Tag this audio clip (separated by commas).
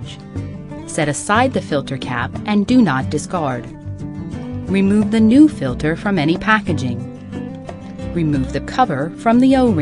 Speech, Music